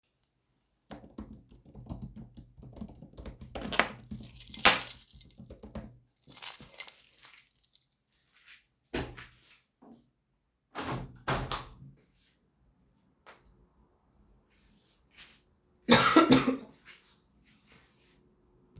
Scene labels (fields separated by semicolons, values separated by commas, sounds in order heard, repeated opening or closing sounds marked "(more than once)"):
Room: bedroom; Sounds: keyboard typing, keys, window